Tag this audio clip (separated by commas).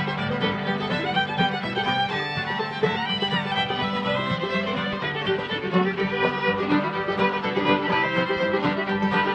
Pizzicato, fiddle, Bowed string instrument